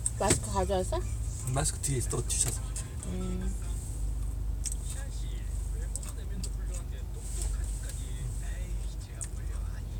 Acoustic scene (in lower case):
car